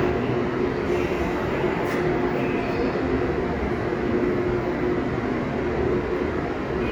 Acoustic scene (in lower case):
subway station